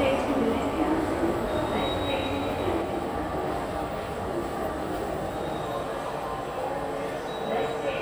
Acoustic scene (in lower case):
subway station